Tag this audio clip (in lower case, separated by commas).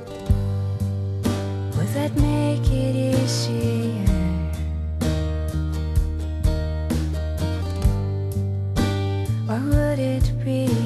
music, singing